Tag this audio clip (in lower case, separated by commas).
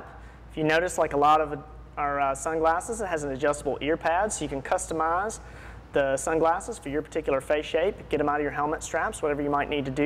speech